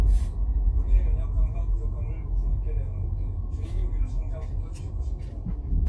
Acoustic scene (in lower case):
car